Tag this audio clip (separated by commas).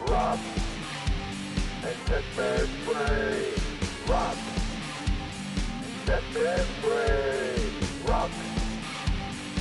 Exciting music, Punk rock, Music, Rock and roll